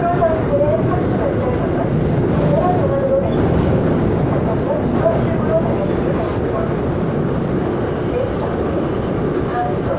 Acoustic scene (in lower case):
subway train